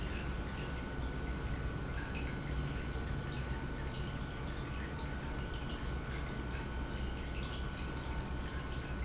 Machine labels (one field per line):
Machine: pump